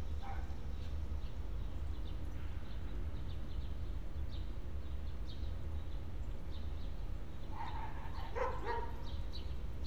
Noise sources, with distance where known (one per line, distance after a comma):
dog barking or whining, far